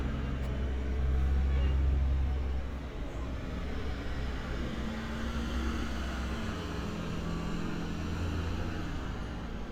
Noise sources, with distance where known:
large-sounding engine, near

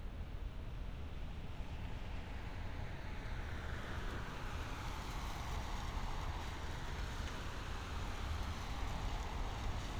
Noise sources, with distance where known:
engine of unclear size

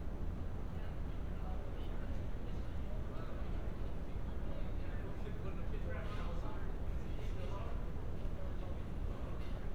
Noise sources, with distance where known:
person or small group talking, far

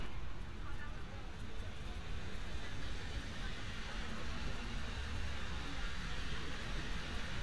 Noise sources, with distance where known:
person or small group talking, far

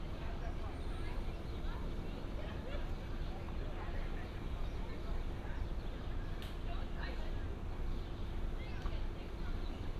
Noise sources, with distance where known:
unidentified human voice

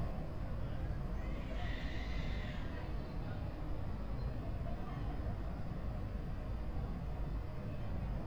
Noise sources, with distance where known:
person or small group shouting, far

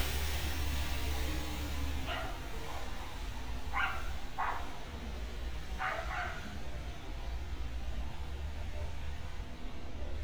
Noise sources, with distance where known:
dog barking or whining

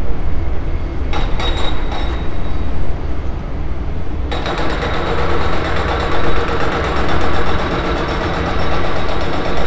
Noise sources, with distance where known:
unidentified impact machinery

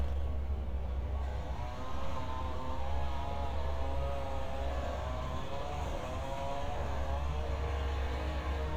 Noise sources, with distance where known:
chainsaw

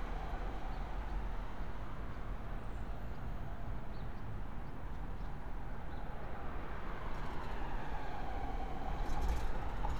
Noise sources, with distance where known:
background noise

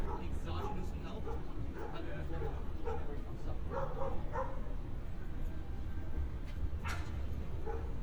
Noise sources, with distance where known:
person or small group talking
dog barking or whining, far

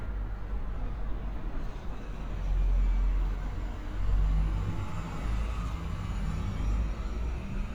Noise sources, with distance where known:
large-sounding engine, near

